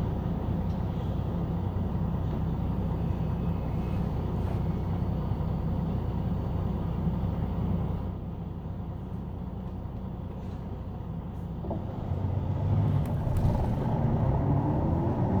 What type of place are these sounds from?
bus